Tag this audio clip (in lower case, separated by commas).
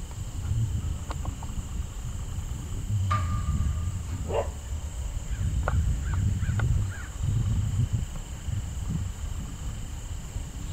animal